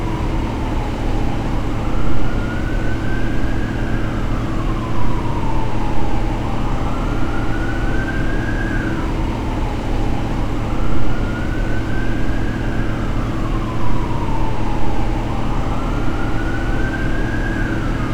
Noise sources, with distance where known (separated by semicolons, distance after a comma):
large-sounding engine, near; siren